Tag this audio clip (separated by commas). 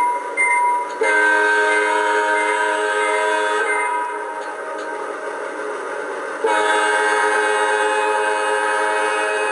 Beep, Sound effect